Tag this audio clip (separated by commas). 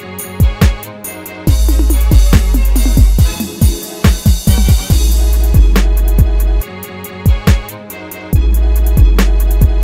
Music